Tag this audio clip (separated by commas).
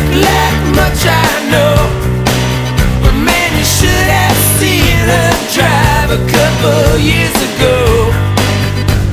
Music